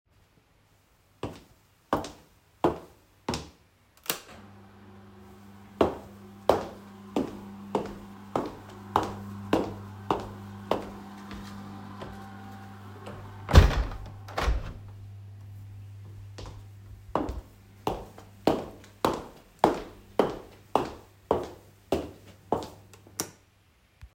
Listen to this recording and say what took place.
I walked across the room and flipped a switch to activate the roller shutter which began making a continuous motor sound. I walked to the window and closed it